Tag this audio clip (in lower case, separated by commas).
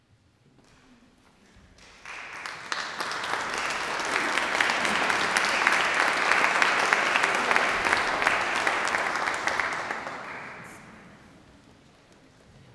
applause, human group actions